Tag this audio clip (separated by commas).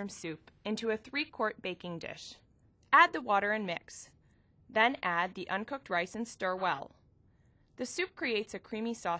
Speech